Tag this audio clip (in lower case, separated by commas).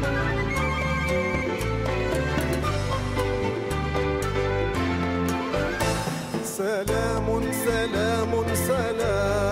music, orchestra